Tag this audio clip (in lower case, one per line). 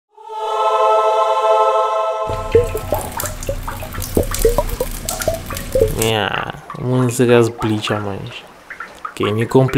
music
speech
liquid